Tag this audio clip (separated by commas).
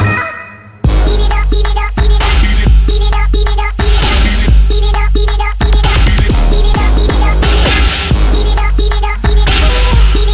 Music